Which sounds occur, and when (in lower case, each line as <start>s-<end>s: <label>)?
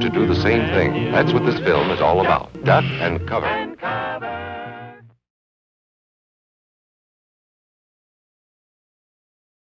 0.0s-5.3s: music
0.0s-2.3s: male speech
2.5s-3.1s: male speech
3.3s-5.0s: male speech